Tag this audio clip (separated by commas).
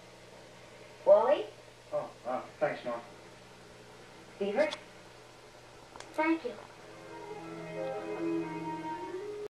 Speech, Music